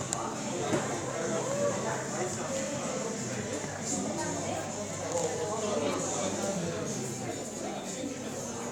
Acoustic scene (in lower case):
cafe